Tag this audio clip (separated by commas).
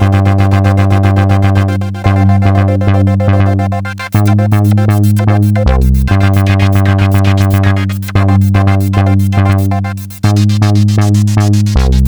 Musical instrument, Music, Keyboard (musical)